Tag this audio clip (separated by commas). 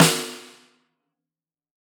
Drum, Percussion, Musical instrument, Music, Snare drum